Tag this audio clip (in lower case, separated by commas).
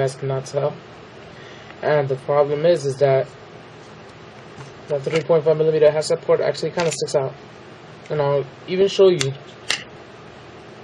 speech